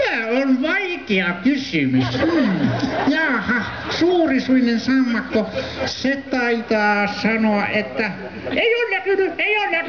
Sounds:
speech

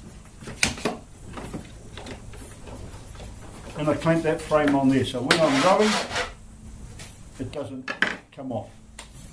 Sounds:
speech

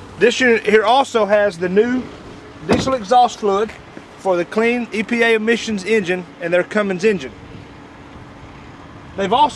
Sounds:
truck, speech, vehicle

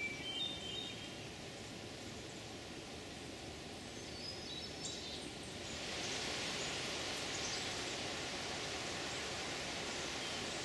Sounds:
wood thrush calling

